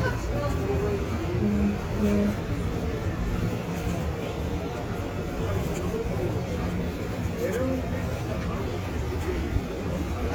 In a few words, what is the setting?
residential area